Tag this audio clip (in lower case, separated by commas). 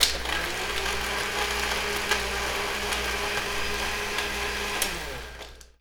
home sounds